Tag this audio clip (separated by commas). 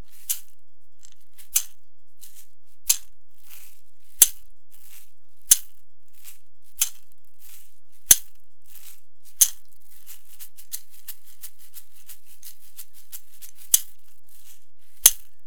Music, Percussion, Rattle (instrument), Musical instrument